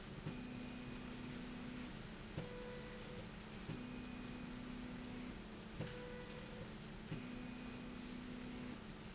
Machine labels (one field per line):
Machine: slide rail